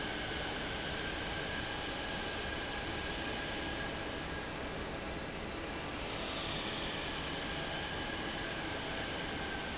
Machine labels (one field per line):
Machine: fan